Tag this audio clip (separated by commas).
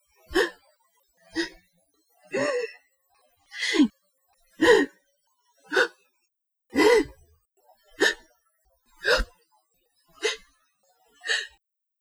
Gasp, Breathing, Respiratory sounds